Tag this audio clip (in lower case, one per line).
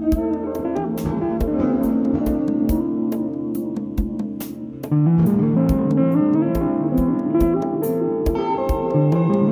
music